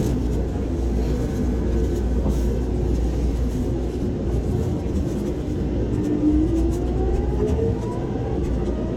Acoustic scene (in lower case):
subway train